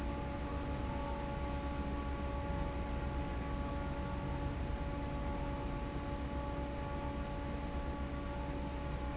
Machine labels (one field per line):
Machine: fan